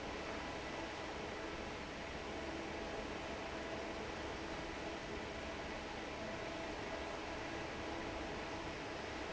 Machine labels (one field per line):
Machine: fan